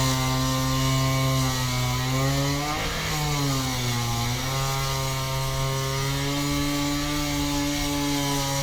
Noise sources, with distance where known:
chainsaw, near

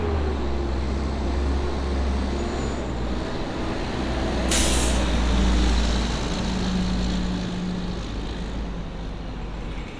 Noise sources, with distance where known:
large-sounding engine, near

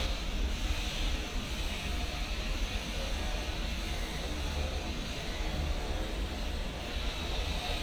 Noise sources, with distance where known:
unidentified powered saw

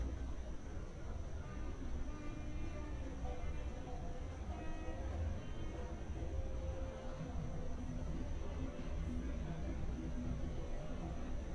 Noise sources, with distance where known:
reverse beeper, far

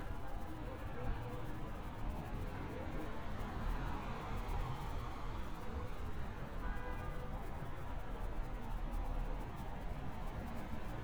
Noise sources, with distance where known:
car horn, far

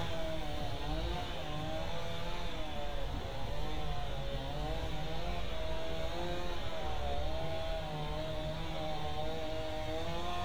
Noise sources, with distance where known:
chainsaw, far

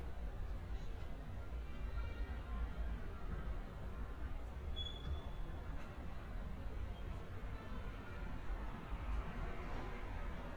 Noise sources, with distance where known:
engine of unclear size
music from an unclear source, far

